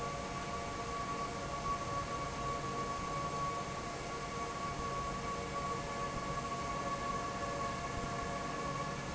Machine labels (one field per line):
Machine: fan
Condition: normal